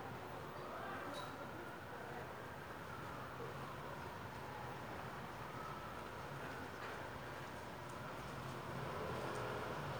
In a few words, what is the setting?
residential area